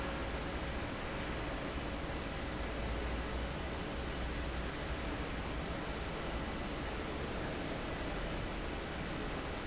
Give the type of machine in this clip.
fan